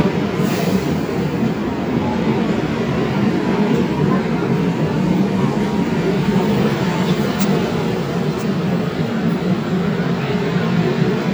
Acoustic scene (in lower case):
subway station